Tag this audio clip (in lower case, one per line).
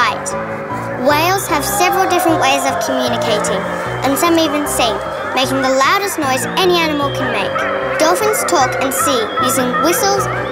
cacophony
music
speech